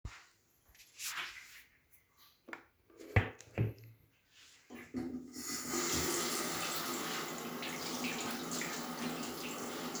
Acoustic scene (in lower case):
restroom